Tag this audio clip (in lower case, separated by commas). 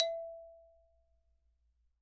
musical instrument, mallet percussion, percussion, xylophone, music